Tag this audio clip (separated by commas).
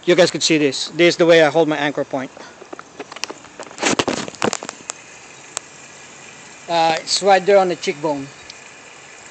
Speech